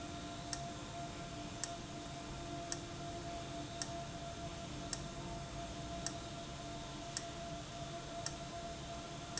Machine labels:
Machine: valve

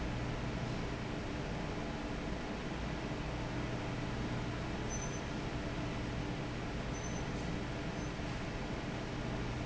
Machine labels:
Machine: fan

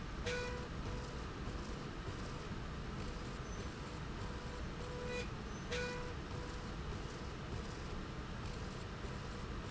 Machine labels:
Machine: slide rail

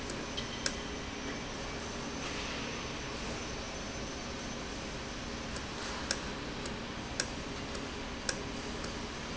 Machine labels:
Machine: valve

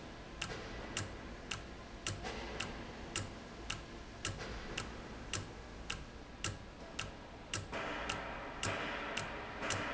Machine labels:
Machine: valve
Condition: normal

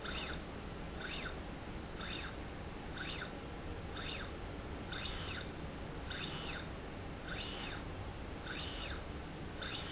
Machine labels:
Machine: slide rail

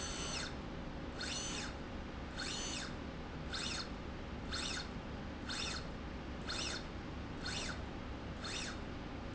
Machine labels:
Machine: slide rail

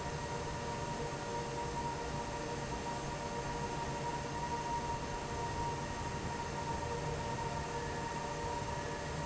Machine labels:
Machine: fan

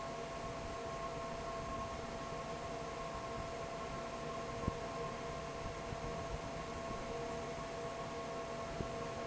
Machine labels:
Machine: fan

